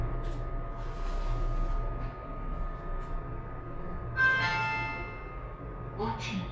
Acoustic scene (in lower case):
elevator